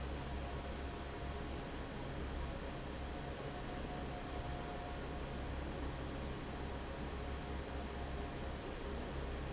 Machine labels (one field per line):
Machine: fan